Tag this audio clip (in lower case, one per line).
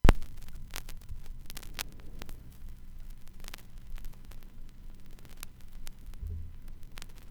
crackle